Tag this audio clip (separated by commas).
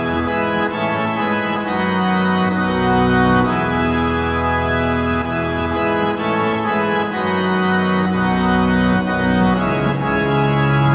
playing electronic organ